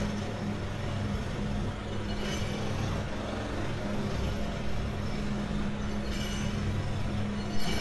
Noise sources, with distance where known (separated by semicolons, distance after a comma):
unidentified impact machinery